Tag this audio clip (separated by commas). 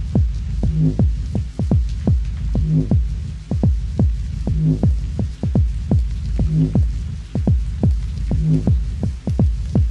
Rain, Rain on surface